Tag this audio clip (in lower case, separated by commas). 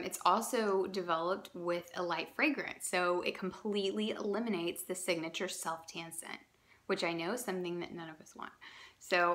speech